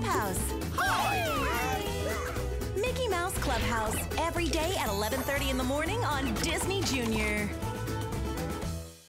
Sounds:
Speech, Music

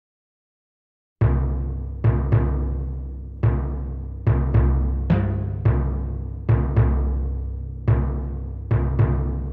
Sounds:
Music, Timpani

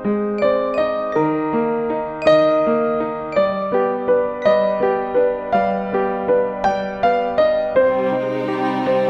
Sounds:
Lullaby, Music

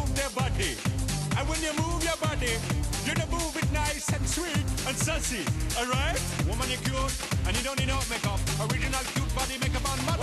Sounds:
Speech, Music

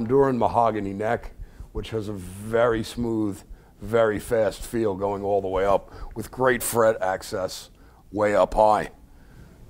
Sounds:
Speech

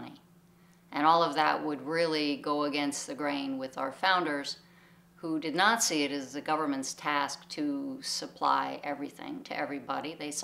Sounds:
Speech

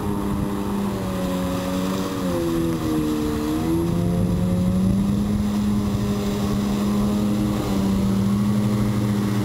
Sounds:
Vehicle, Water vehicle, Motorboat, speedboat acceleration

